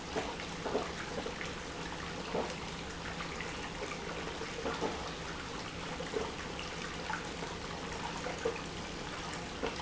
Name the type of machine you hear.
pump